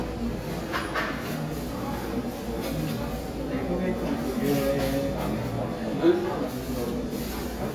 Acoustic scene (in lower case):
cafe